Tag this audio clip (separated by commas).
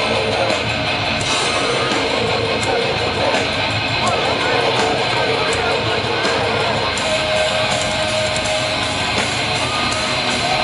Music